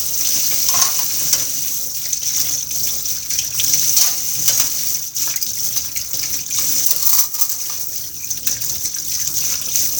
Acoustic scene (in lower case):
kitchen